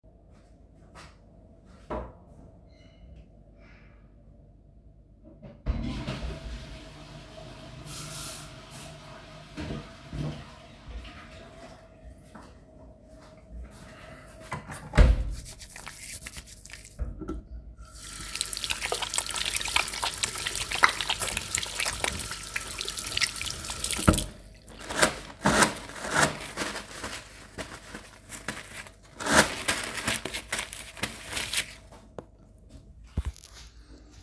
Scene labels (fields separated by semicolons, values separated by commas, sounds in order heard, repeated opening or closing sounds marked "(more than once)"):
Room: lavatory; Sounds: toilet flushing, running water